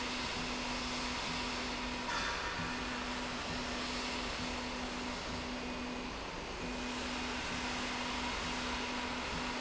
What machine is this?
slide rail